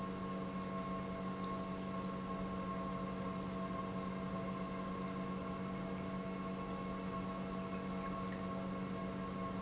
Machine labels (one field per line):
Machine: pump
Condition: normal